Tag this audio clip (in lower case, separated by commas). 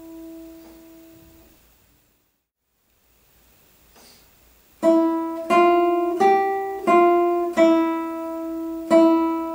music, guitar, musical instrument, plucked string instrument, acoustic guitar